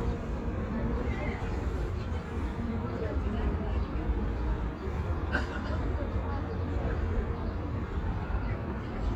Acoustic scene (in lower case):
park